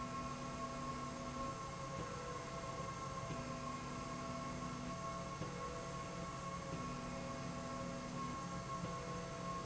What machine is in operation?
slide rail